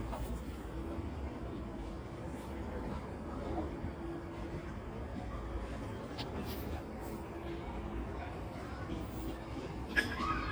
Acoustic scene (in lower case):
residential area